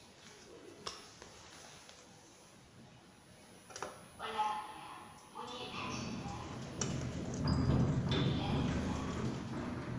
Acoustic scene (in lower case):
elevator